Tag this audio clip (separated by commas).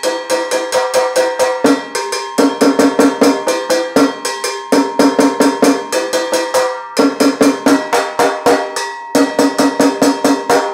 playing timbales